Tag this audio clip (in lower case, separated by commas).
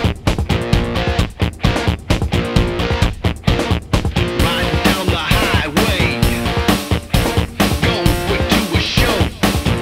music